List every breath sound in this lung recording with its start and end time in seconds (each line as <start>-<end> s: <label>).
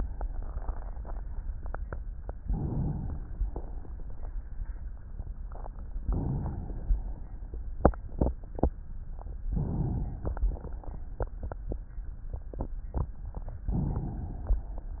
2.35-3.35 s: inhalation
3.36-4.57 s: exhalation
6.05-7.58 s: inhalation
9.29-10.20 s: inhalation
10.21-11.35 s: exhalation
13.61-14.82 s: inhalation